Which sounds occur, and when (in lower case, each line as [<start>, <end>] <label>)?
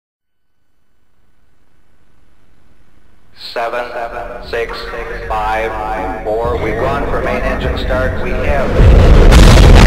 [0.18, 4.41] noise
[3.30, 8.62] man speaking
[4.07, 8.84] music
[9.24, 9.85] explosion